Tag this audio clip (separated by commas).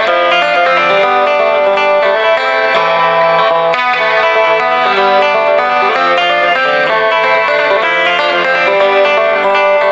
Guitar, Country, Plucked string instrument, Music, Musical instrument